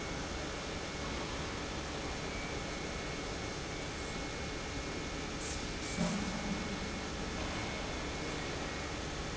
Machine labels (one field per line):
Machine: pump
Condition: normal